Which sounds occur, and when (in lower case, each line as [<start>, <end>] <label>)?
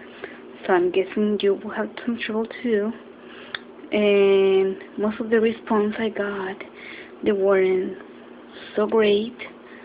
[0.01, 9.84] mechanisms
[0.09, 0.36] breathing
[0.56, 2.91] woman speaking
[3.19, 3.47] breathing
[3.47, 3.58] tick
[3.81, 4.80] woman speaking
[4.92, 6.63] woman speaking
[6.70, 7.11] breathing
[7.15, 8.12] woman speaking
[7.63, 7.73] tick
[7.95, 8.03] generic impact sounds
[8.45, 8.77] breathing
[8.67, 9.33] woman speaking
[8.84, 8.93] generic impact sounds
[9.62, 9.84] breathing